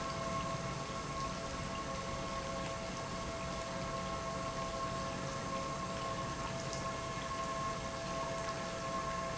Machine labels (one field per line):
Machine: pump